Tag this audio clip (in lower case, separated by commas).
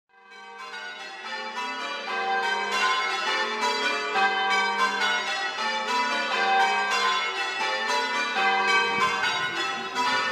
church bell ringing